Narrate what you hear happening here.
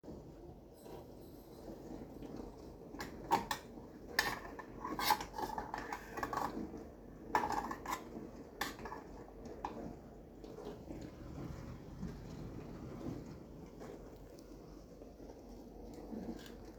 While the dishwasher was running, I arranged the cleaned cutlery